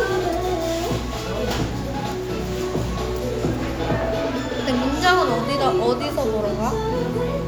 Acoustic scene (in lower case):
cafe